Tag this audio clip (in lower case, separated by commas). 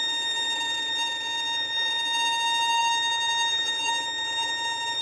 musical instrument, bowed string instrument, music